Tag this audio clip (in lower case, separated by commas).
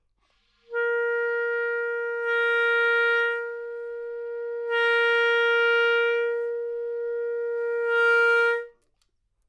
wind instrument, music, musical instrument